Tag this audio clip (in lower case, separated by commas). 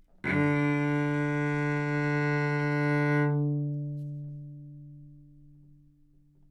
musical instrument, music, bowed string instrument